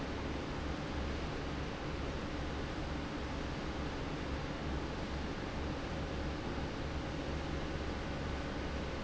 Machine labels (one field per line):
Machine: fan